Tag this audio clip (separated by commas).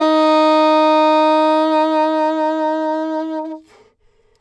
Wind instrument, Music, Musical instrument